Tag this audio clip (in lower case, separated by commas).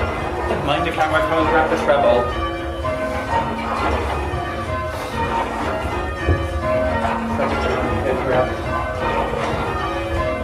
music, speech